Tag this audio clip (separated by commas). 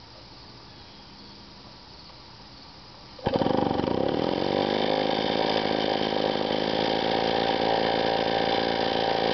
Medium engine (mid frequency), Engine